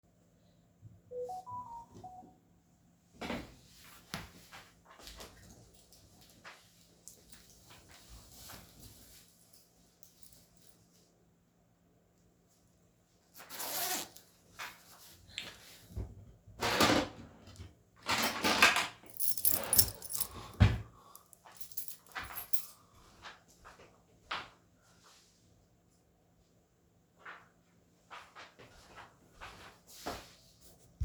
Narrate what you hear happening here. I get a notification, get a hoodie and zip it up, then I get my keys from the drawer, then I go out of the room.